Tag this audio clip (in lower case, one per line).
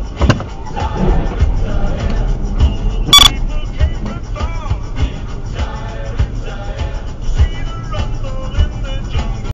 music